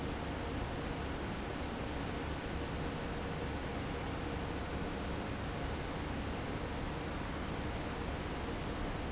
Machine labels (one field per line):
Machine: fan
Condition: normal